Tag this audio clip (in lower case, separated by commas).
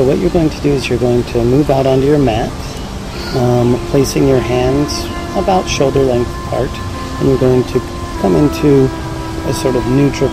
music, speech